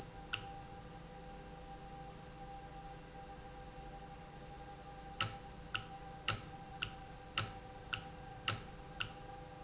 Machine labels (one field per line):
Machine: valve